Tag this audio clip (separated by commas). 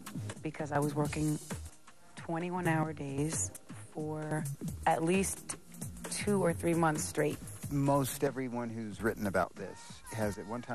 Speech, Music